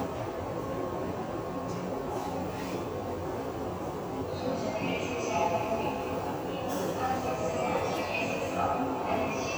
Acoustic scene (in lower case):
subway station